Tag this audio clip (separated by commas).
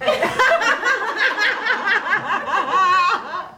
Human voice, Laughter